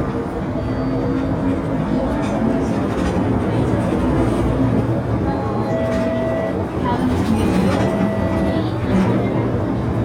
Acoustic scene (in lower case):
bus